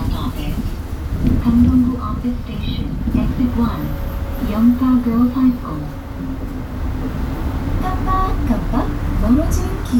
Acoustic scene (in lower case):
bus